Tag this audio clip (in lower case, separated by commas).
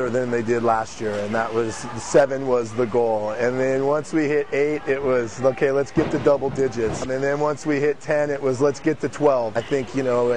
speech